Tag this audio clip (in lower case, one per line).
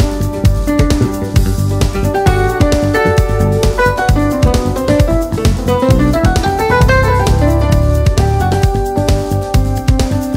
music